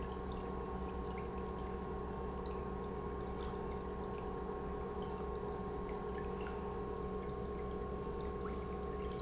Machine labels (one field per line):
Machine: pump